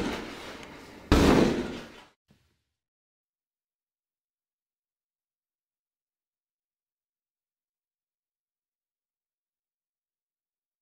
Door being kicked hard